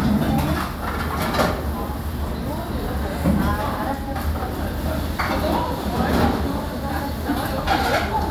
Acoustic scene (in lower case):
restaurant